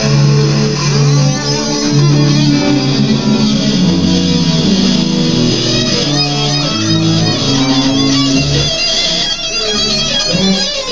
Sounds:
musical instrument, strum, guitar, bass guitar, plucked string instrument, music

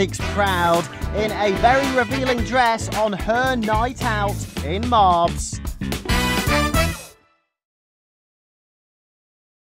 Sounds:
music, speech

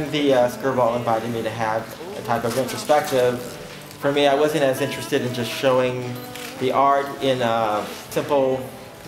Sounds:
speech, music

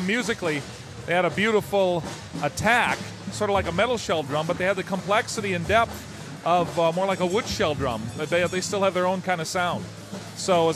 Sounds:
speech, drum kit, musical instrument, drum, music

